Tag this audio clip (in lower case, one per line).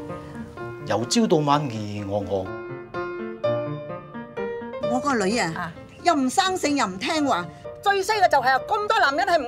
speech
music